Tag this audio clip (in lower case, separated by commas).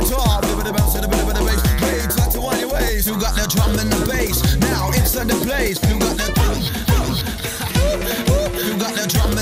music, rapping